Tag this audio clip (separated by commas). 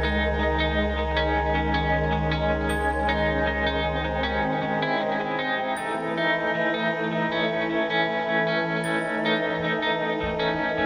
Music